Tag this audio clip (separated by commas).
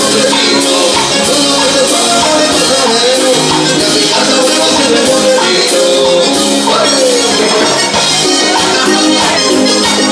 Music